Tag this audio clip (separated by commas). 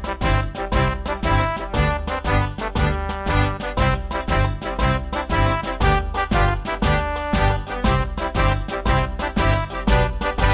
Music